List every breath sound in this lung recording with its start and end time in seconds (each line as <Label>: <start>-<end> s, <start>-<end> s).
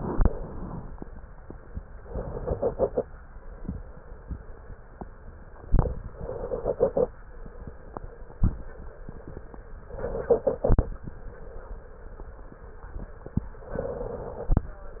Inhalation: 2.01-3.04 s, 6.06-7.09 s, 9.90-10.93 s, 13.64-14.67 s